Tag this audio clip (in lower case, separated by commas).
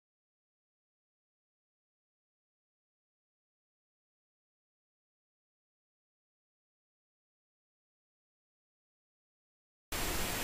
silence